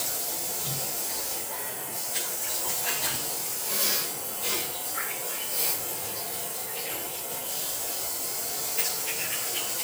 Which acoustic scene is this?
restroom